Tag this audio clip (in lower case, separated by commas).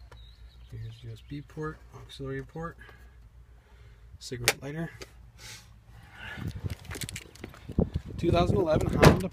sliding door